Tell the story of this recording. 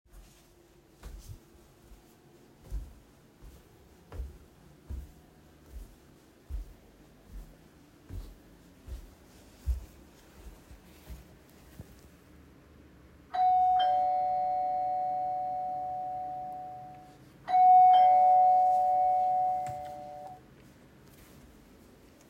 I was walking in between rooms when I heard my door bell ring.